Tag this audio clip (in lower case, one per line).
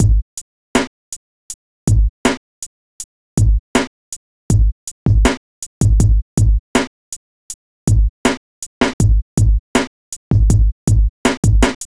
music
musical instrument
drum kit
percussion